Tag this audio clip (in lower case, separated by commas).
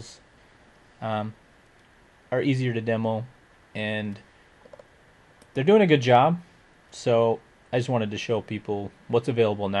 speech